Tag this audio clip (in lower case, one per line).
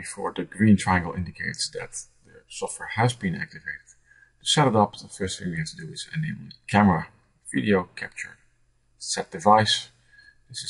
speech